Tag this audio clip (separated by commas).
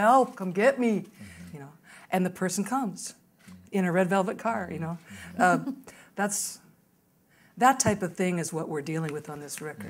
Speech